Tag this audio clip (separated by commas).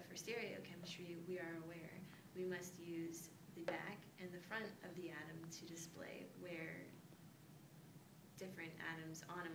Speech